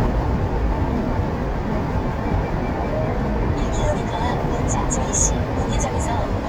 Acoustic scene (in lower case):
car